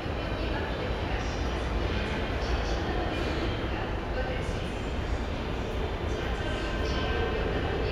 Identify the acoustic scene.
subway station